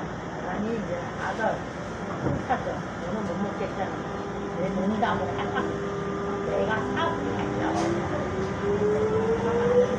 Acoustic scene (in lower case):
subway train